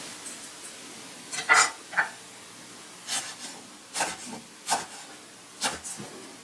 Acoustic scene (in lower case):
kitchen